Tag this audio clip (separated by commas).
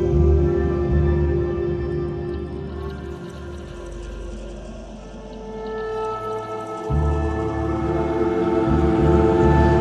Electronic music, Music, Ambient music, Soundtrack music